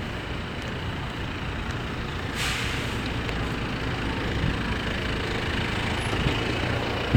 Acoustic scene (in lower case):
street